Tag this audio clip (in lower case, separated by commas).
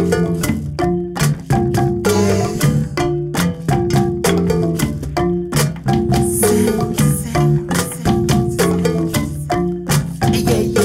musical instrument, music, marimba